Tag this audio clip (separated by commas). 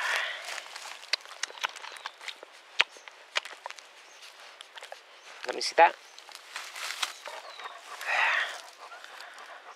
Speech, Domestic animals, Animal, Dog